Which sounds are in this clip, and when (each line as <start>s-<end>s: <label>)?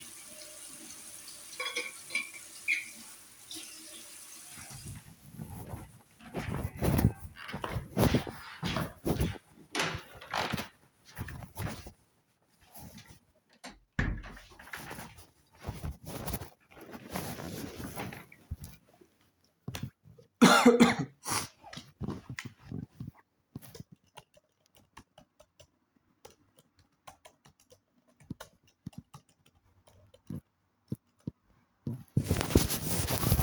0.0s-5.2s: running water
9.9s-11.2s: door
13.9s-14.7s: door
23.9s-31.5s: keyboard typing